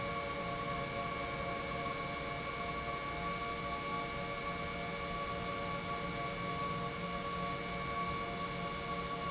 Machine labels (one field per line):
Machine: pump